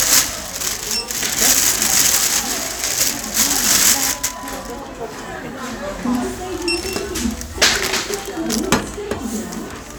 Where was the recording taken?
in a crowded indoor space